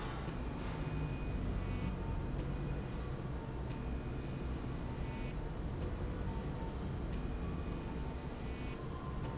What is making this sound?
slide rail